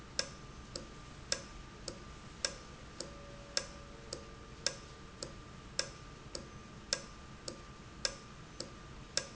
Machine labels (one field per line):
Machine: valve